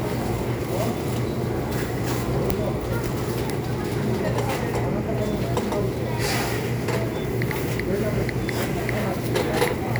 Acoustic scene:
crowded indoor space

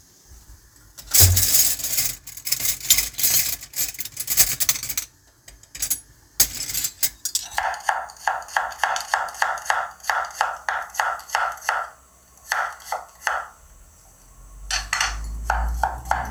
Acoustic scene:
kitchen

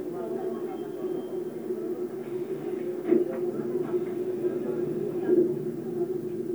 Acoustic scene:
subway train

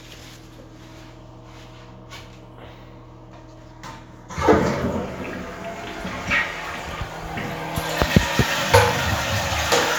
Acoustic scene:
restroom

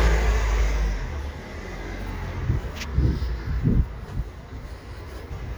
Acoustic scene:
residential area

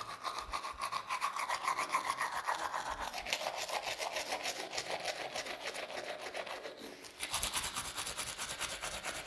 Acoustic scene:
restroom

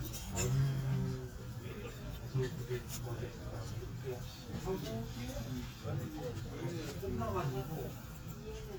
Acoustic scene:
crowded indoor space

